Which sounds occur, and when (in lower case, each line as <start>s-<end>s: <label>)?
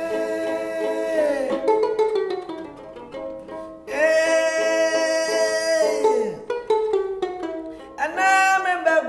0.0s-1.5s: male singing
0.0s-9.0s: music
3.4s-3.7s: breathing
3.8s-6.4s: male singing
7.7s-7.9s: breathing
8.0s-9.0s: male singing